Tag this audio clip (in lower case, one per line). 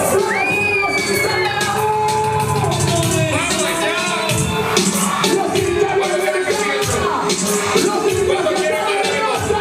speech
disco
music